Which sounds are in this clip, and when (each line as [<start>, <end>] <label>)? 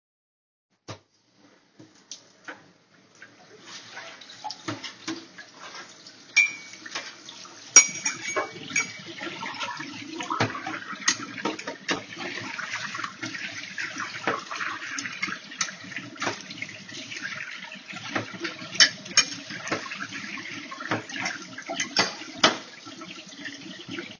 [0.85, 2.62] footsteps
[3.17, 24.19] running water
[4.42, 12.17] cutlery and dishes
[14.19, 16.75] cutlery and dishes
[18.08, 22.71] cutlery and dishes